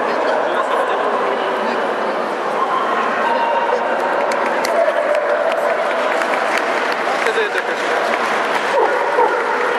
Dogs are barking and a crowd is talking and cheering